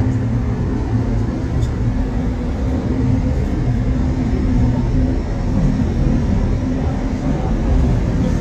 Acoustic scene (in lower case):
subway train